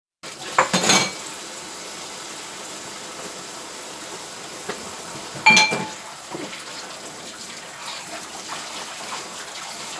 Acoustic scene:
kitchen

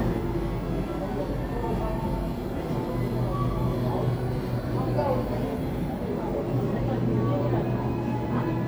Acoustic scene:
crowded indoor space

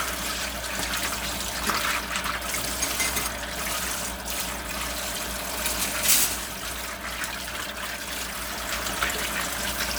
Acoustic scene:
kitchen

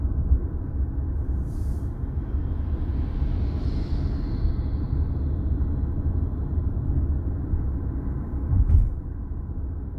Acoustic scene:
car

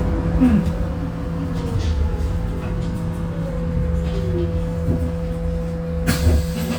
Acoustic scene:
bus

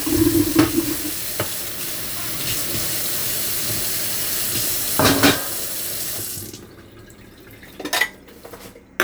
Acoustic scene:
kitchen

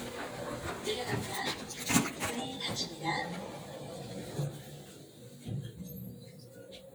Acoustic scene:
elevator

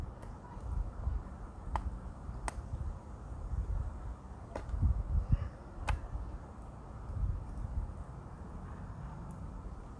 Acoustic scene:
park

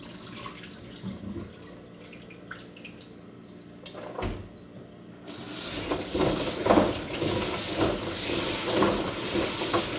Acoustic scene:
kitchen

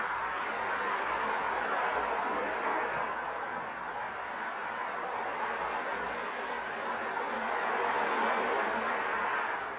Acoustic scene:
street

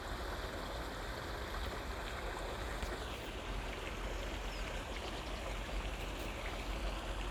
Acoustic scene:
park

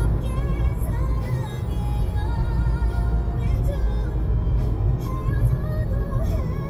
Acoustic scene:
car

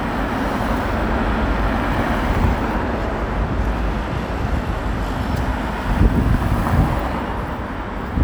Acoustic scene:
street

